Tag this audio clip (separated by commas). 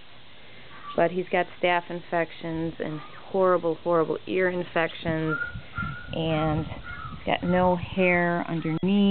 Speech